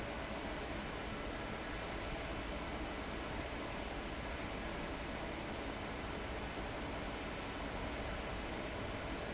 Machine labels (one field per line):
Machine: fan